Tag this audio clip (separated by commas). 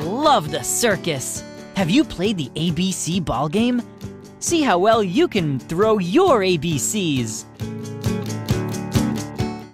Speech, Music